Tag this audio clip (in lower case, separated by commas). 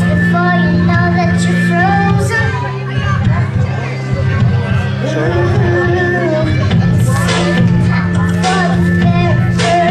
music, female singing, child singing